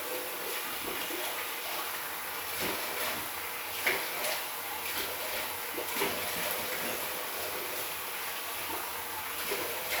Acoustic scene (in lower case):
restroom